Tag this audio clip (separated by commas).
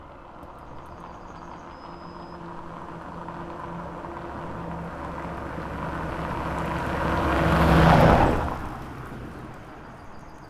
Vehicle, Motor vehicle (road)